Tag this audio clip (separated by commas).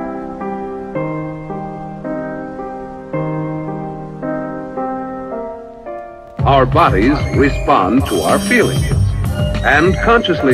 Music, Background music, Speech